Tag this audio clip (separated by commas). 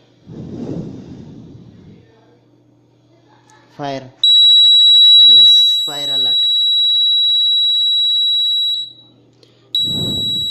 Fire alarm, Speech, bleep